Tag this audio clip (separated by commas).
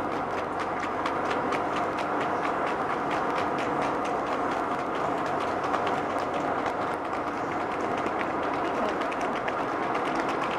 Tick, Speech